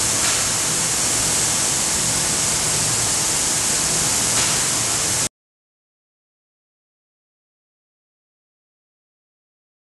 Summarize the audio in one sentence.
Spray sounds continuously